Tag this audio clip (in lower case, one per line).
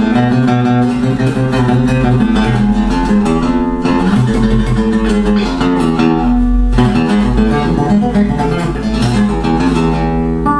music
acoustic guitar
musical instrument
guitar
plucked string instrument
strum
playing acoustic guitar